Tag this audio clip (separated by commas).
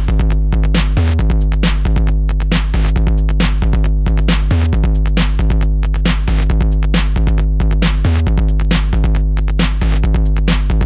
Electronic music, Music, Electronic dance music